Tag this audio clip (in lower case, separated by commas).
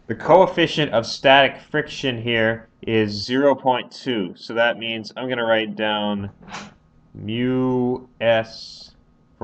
speech